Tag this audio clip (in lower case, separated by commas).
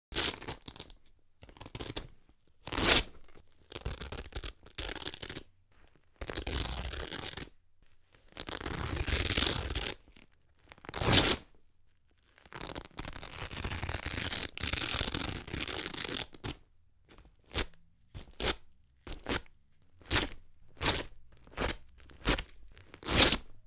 domestic sounds